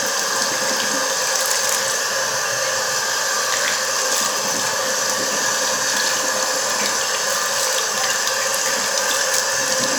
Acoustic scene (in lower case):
restroom